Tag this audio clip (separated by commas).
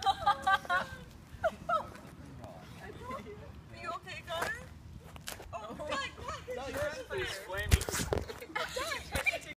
Speech